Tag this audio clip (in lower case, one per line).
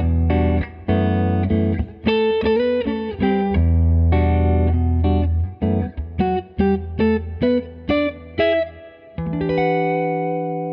music